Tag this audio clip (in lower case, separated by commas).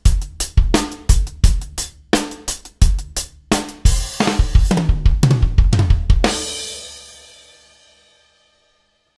cymbal, heavy metal, reggae, drum, snare drum, music, drum kit, musical instrument